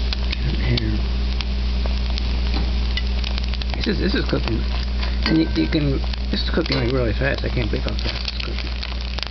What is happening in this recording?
Crackling followed by speech and clinking dishes